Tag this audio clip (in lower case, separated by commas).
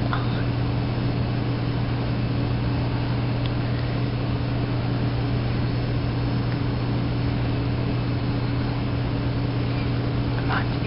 silence, inside a large room or hall